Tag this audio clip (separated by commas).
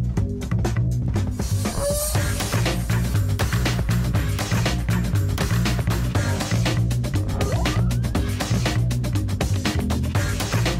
Music